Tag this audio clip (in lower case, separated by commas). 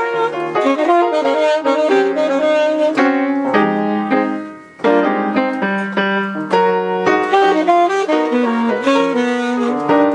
keyboard (musical), piano